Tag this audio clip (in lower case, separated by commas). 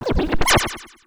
scratching (performance technique), music, musical instrument